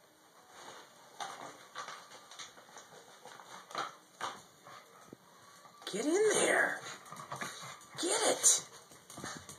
An elderly voice talking and a dog whimpering